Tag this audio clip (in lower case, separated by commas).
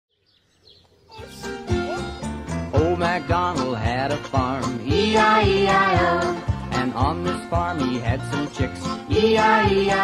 music, outside, rural or natural